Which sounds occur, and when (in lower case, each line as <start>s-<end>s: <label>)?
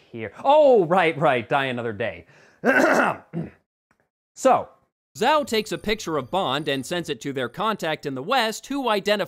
0.0s-0.1s: breathing
0.0s-3.6s: background noise
0.1s-2.2s: male speech
2.2s-2.6s: breathing
2.6s-3.5s: throat clearing
3.5s-3.6s: breathing
3.9s-4.1s: generic impact sounds
4.3s-4.7s: male speech
4.3s-4.9s: background noise
4.6s-4.9s: breathing
5.1s-9.2s: background noise
5.1s-9.2s: male speech
5.4s-7.0s: brief tone